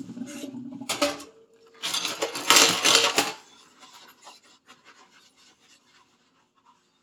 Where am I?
in a kitchen